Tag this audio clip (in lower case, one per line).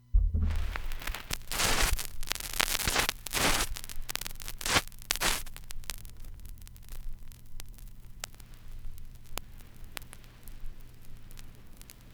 crackle